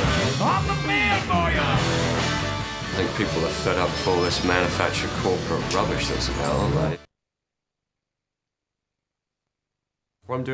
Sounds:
Speech, Music, Singing

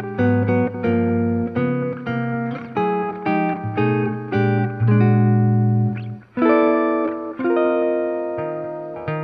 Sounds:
Electric guitar, Musical instrument, Effects unit, Music, Plucked string instrument, Guitar

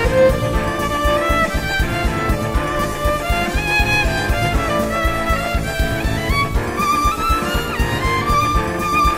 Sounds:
Musical instrument, Violin, Music

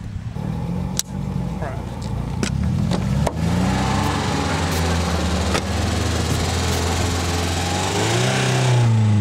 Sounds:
Vehicle, Speech, Medium engine (mid frequency), Car

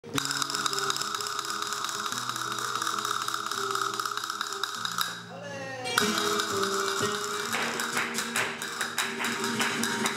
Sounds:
playing castanets

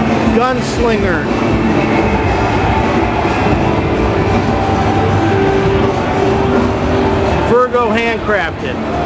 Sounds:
Speech, Music, Guitar, Musical instrument

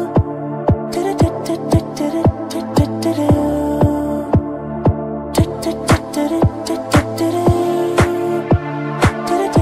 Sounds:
Music

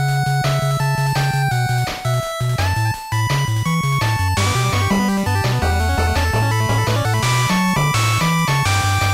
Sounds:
Music

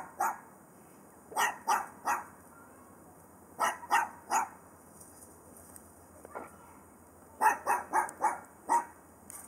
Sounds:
Animal

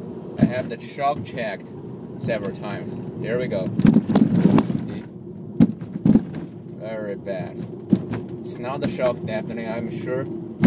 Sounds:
Speech

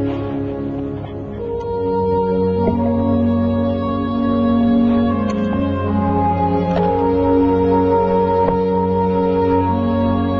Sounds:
Music

